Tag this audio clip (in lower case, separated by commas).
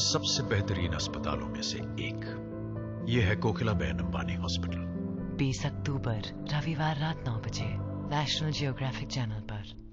speech, music